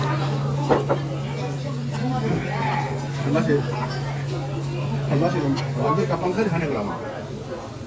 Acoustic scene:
restaurant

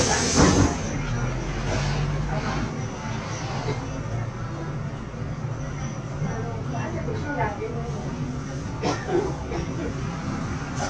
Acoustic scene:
bus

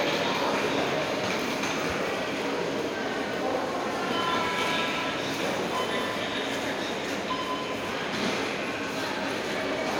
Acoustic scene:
subway station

